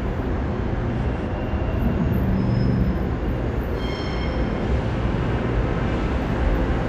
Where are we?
in a subway station